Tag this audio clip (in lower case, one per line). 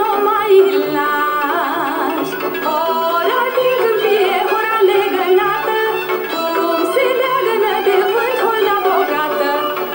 music
folk music
traditional music